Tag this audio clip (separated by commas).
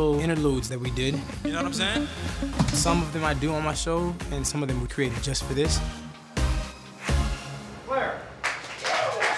Musical instrument, Music, Speech